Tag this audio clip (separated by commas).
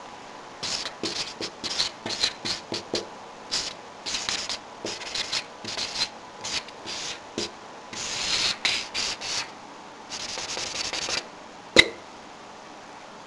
Writing, home sounds